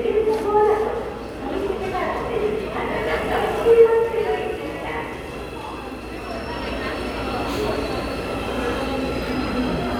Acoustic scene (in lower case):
subway station